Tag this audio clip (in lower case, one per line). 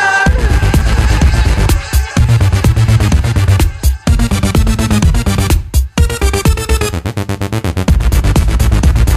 electronic dance music
music